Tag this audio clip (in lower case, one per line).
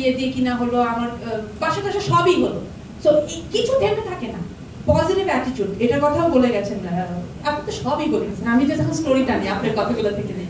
speech
narration
female speech